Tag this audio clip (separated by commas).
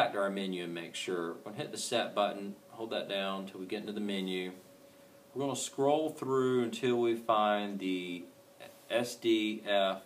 Speech